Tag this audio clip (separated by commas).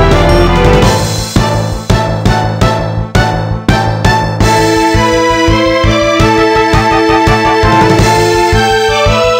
Music